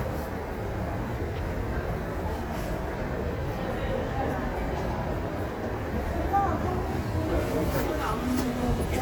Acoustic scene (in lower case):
subway station